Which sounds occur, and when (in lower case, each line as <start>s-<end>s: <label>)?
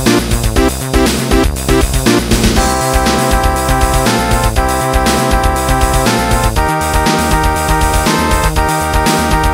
0.0s-9.5s: music